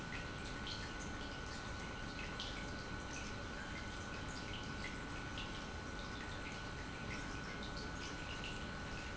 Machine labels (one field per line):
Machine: pump